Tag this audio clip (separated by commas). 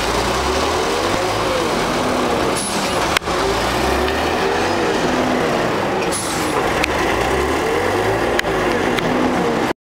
Vehicle, Bus